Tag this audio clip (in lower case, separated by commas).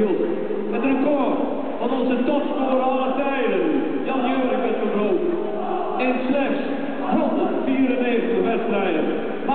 speech